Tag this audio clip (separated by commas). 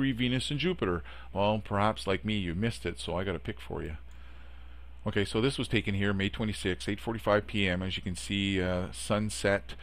Speech